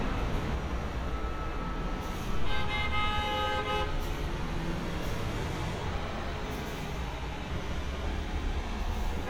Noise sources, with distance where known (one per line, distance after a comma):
engine of unclear size, near
car horn, near